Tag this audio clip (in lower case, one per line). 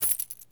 coin (dropping)
domestic sounds